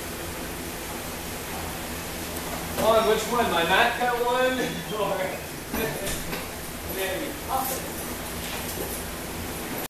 Two men are having a conversation and a door is opened